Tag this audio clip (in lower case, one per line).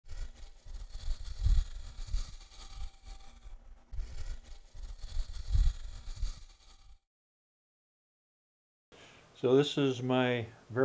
tools